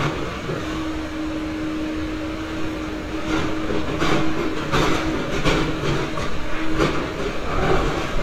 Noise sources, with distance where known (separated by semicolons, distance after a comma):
large-sounding engine, near